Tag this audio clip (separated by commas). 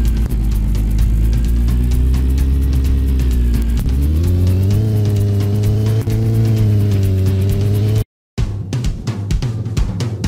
Music, Car, Truck